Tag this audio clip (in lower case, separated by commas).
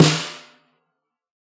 percussion, drum, musical instrument, snare drum, music